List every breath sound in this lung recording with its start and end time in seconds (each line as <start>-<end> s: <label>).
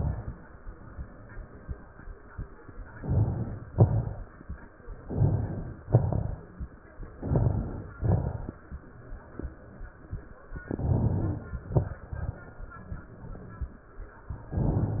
2.95-3.68 s: inhalation
3.73-4.47 s: exhalation
3.73-4.47 s: crackles
5.07-5.83 s: inhalation
5.86-6.71 s: exhalation
5.86-6.71 s: crackles
7.08-7.93 s: crackles
7.12-7.97 s: inhalation
7.96-8.81 s: exhalation
7.96-8.81 s: crackles
10.64-11.49 s: inhalation
10.64-11.49 s: crackles
11.58-12.41 s: exhalation
11.58-12.41 s: crackles
14.48-15.00 s: inhalation